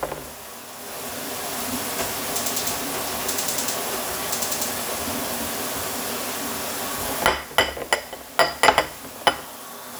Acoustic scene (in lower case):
kitchen